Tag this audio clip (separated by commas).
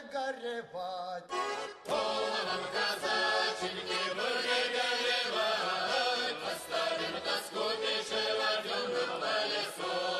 Music